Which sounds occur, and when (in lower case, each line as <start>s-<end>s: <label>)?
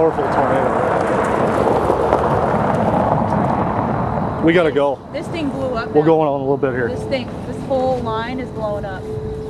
0.0s-0.7s: male speech
0.0s-9.4s: conversation
0.0s-9.4s: wind
0.0s-4.3s: explosion
4.5s-5.0s: male speech
5.1s-6.0s: female speech
5.9s-7.0s: male speech
6.9s-7.3s: female speech
7.5s-9.0s: female speech